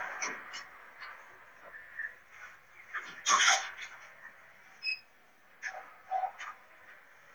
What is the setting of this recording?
elevator